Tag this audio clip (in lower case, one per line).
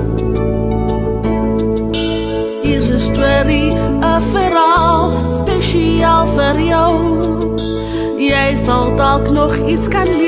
music
music for children